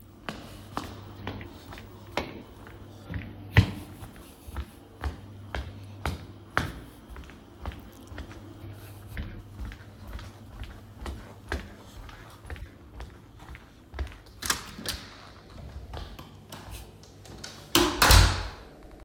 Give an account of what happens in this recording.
I was going from the bedroom to the living room